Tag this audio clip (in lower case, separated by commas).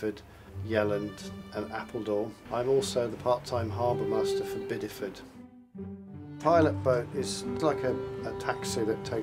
speech, music